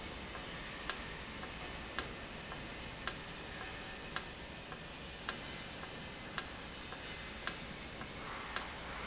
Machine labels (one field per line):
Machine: valve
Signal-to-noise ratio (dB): 0 dB